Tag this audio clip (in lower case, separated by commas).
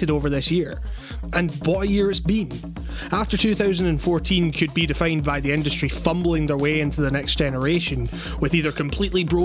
speech, music